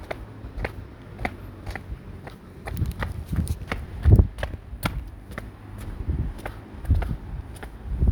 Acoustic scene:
residential area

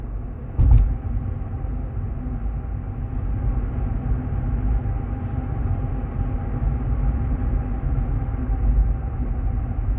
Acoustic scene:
car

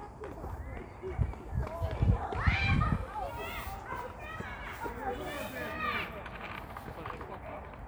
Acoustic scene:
park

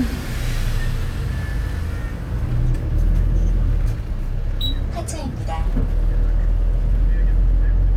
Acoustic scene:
bus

